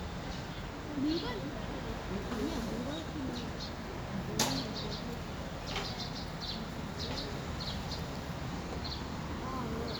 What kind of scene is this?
residential area